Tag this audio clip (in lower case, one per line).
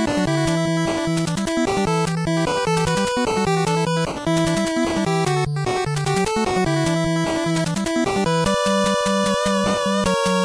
theme music
music